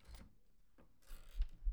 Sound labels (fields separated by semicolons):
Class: door; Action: opening; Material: wooden